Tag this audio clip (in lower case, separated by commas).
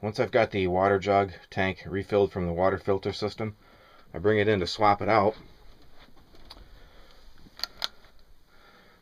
speech